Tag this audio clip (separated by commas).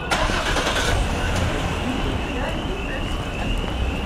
Car, Motor vehicle (road), Vehicle, Engine, Engine starting